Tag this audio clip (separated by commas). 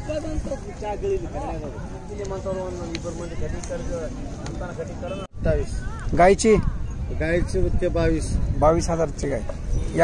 bull bellowing